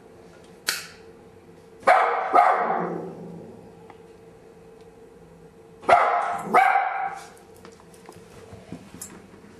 Sound of a dog barking followed by hitting sound of a steel